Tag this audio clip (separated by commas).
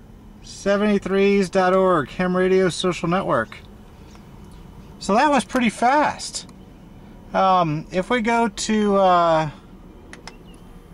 Speech